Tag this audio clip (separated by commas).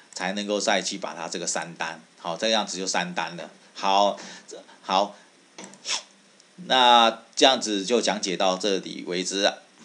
Speech